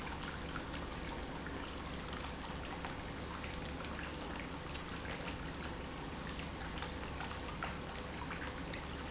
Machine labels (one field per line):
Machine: pump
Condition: normal